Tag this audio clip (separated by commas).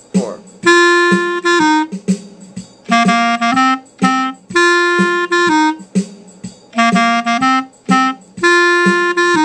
playing clarinet